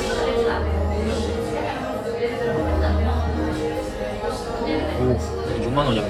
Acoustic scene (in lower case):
cafe